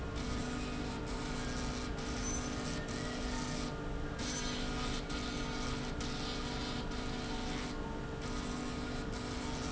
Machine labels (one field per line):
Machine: slide rail